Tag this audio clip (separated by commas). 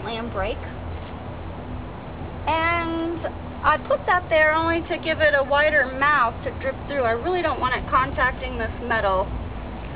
Speech